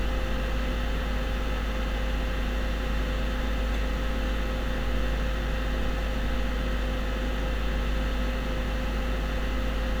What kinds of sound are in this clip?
large-sounding engine